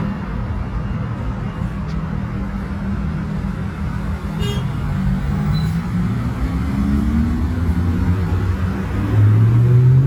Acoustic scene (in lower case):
street